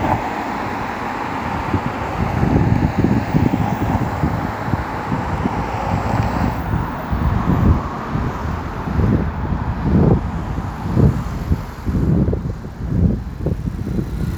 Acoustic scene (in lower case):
street